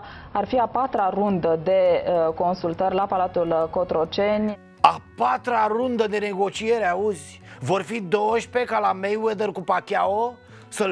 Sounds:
speech

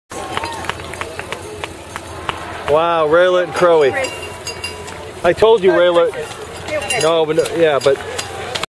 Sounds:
run, outside, urban or man-made, speech

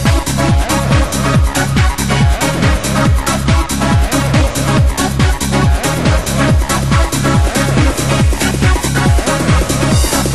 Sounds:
music, electronic music, techno

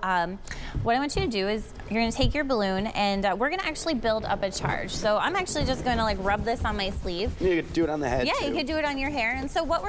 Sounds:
speech

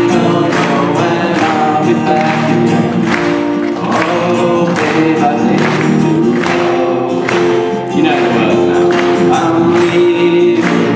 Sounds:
male singing, music

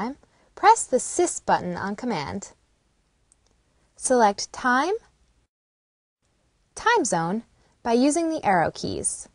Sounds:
speech

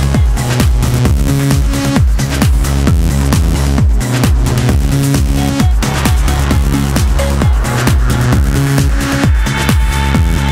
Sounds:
music

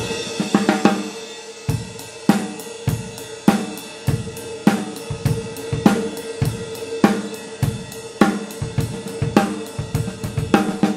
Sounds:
music, snare drum

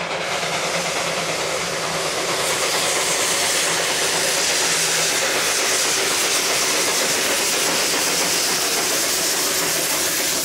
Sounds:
train, vehicle, rail transport, train wagon

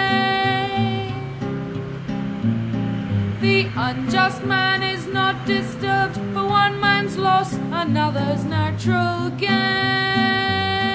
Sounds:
music

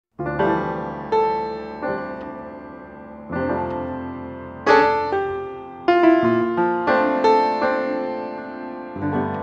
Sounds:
music, electric piano

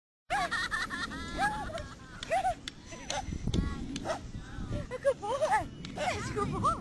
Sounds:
animal, speech, domestic animals, dog, bow-wow

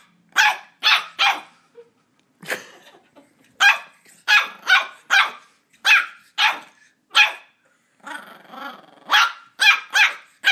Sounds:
animal, dog, domestic animals, bark, dog barking

